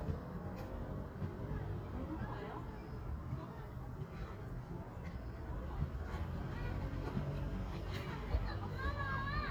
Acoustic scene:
residential area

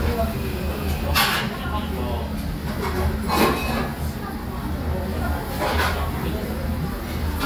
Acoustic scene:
restaurant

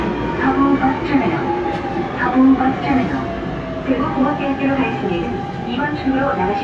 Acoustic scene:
subway train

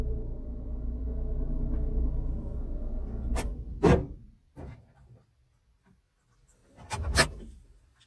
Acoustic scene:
car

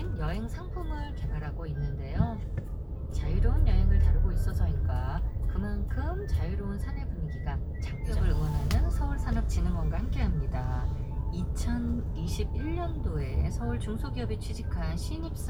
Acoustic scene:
car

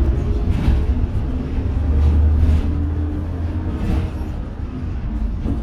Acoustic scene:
bus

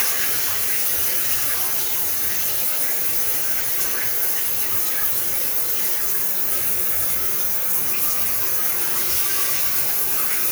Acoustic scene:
restroom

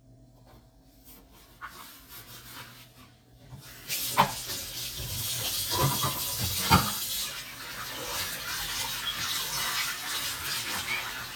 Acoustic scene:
kitchen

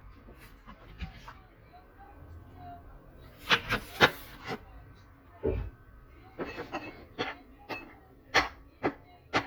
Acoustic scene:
kitchen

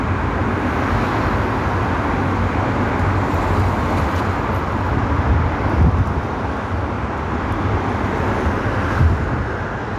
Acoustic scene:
street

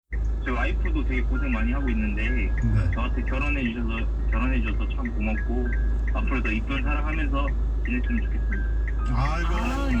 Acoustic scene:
car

